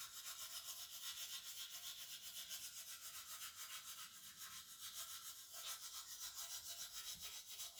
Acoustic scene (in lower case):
restroom